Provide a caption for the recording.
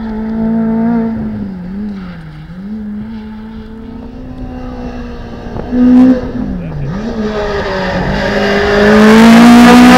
A race car motor is running and it is passing by